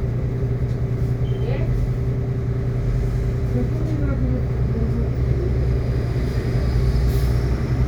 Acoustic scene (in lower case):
bus